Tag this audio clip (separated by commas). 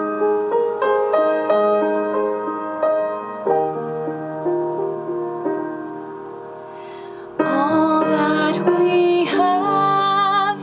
Female singing, Music